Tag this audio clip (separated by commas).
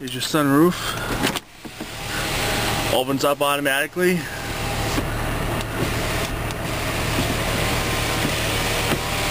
Vehicle, Car, electric windows, Speech, Engine